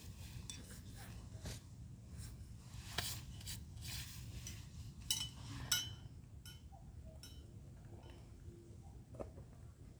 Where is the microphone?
in a park